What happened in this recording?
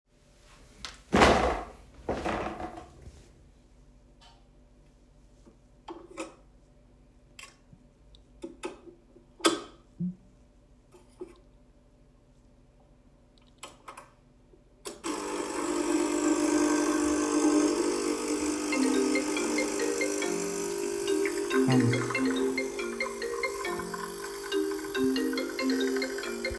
I dropped a box onto the counter, then started the coffee machine. Whilst it was dispensing the hot liquid into my cup my phone rang. I then had hummed a bit out of curiousity.